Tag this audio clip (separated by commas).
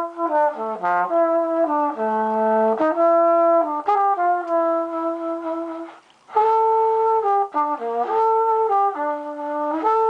Music